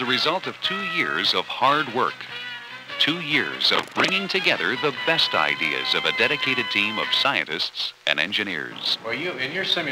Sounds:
music, speech

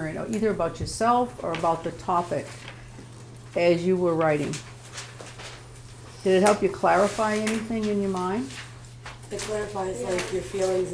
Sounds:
speech

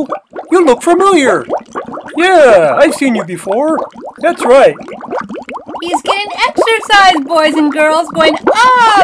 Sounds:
speech

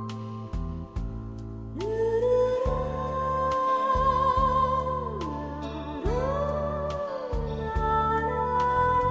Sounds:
music, new-age music

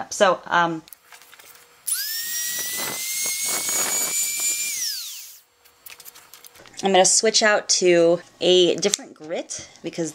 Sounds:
inside a small room, speech

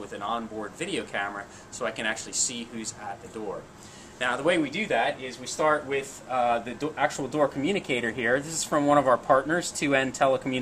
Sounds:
speech

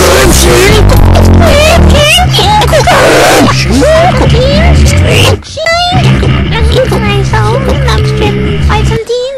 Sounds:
music, speech

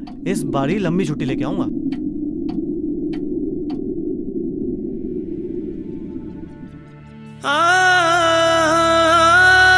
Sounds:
speech, music

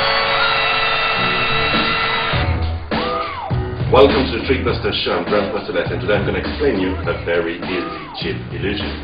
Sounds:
speech, music

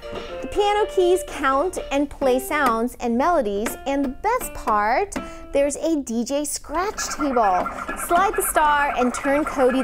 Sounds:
speech, music, child speech

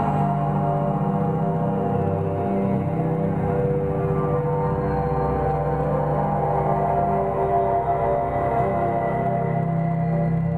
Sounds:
electronic music, music, ambient music

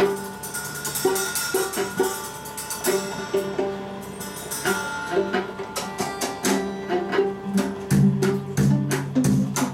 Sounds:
percussion, violin, guitar, musical instrument, music, drum, bowed string instrument

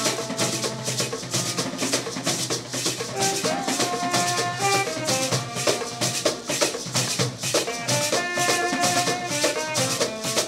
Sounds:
percussion, drum

